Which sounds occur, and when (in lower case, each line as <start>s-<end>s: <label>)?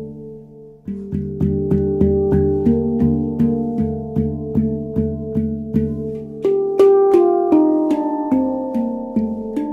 0.0s-9.7s: music